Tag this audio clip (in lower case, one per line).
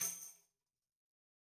music
percussion
tambourine
musical instrument